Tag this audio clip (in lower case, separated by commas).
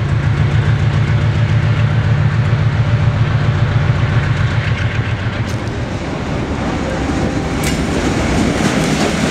rail transport, railroad car, vehicle, train